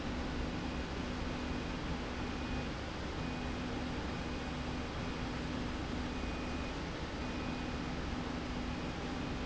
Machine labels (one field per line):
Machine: slide rail